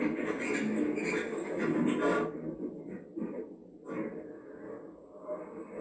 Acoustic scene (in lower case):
elevator